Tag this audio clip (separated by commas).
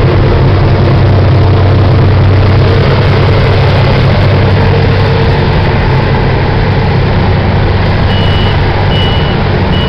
Truck, Vehicle